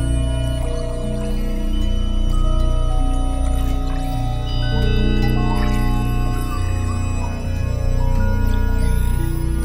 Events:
[0.00, 9.64] music
[0.44, 1.58] water
[3.39, 4.40] water
[5.56, 5.85] water
[8.43, 9.43] water

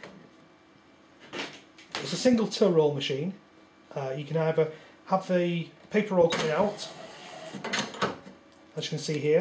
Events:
[0.00, 9.40] mechanisms
[6.28, 8.08] cash register
[8.73, 9.40] male speech

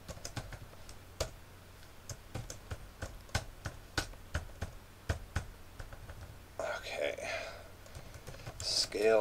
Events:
[0.00, 0.93] computer keyboard
[0.00, 9.20] background noise
[1.15, 1.29] computer keyboard
[1.71, 4.70] computer keyboard
[5.05, 5.47] computer keyboard
[5.74, 6.25] computer keyboard
[6.57, 7.22] male speech
[7.14, 7.67] breathing
[7.82, 9.20] computer keyboard
[8.56, 9.20] male speech

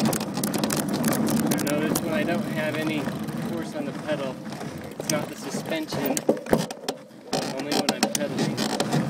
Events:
[0.00, 0.78] creak
[0.00, 9.05] bicycle
[0.00, 9.05] wind
[0.91, 2.04] creak
[1.46, 3.04] male speech
[3.50, 3.87] male speech
[4.06, 4.34] male speech
[5.03, 6.14] male speech
[5.03, 5.16] tick
[6.11, 6.24] tick
[6.24, 6.36] generic impact sounds
[6.50, 6.66] generic impact sounds
[6.66, 6.95] tick
[7.32, 7.56] creak
[7.47, 8.45] male speech
[7.69, 8.19] creak
[8.37, 8.96] creak

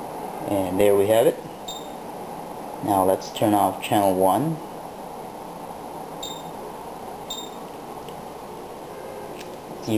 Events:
[0.00, 9.95] mechanisms
[0.44, 1.29] man speaking
[1.66, 1.92] bleep
[2.78, 4.63] man speaking
[6.18, 6.50] bleep
[7.29, 7.61] bleep
[8.03, 8.10] tick
[9.36, 9.42] tick
[9.82, 9.95] man speaking

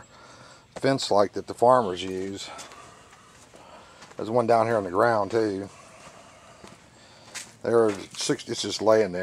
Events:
[0.00, 9.22] background noise
[0.63, 2.70] man speaking
[4.12, 5.71] man speaking
[7.39, 9.22] man speaking

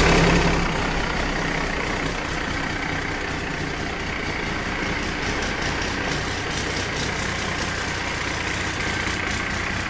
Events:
[0.00, 9.85] mechanisms

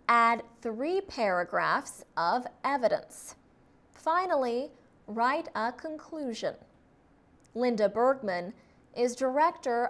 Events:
[0.00, 9.85] mechanisms
[0.04, 2.01] woman speaking
[2.13, 2.47] woman speaking
[2.60, 3.32] woman speaking
[3.94, 4.77] woman speaking
[5.03, 6.63] woman speaking
[7.34, 7.50] clicking
[7.50, 8.54] woman speaking
[8.50, 8.84] breathing
[8.93, 9.85] woman speaking

